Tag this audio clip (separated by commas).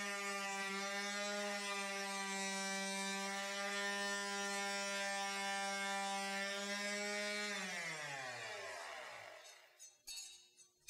electric razor